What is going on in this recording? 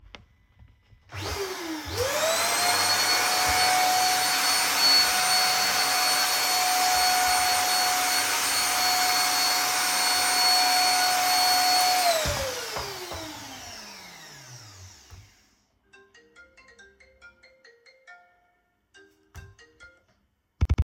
I turned on the vacuum cleaner, cleaned a bit, stopped the vacuum cleaner, then my phone rang and i picked it up.